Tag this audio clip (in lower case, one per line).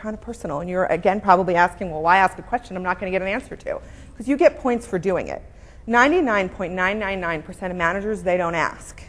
speech